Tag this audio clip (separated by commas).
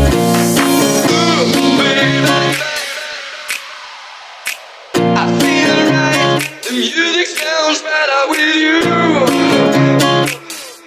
Jazz, Echo, Funk, Rhythm and blues, Music, Independent music